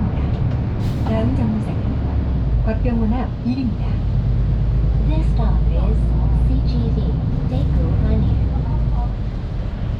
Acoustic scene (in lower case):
bus